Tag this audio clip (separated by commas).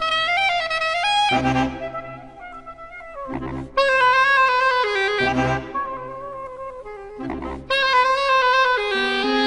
Music